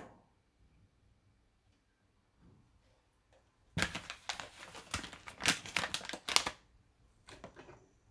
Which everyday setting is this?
kitchen